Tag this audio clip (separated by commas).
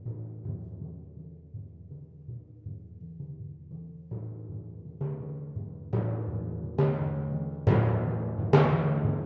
Music, Drum, Musical instrument, Timpani